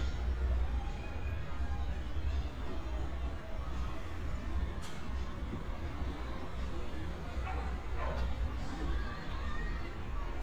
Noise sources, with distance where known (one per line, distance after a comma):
non-machinery impact
music from a fixed source, far
dog barking or whining, far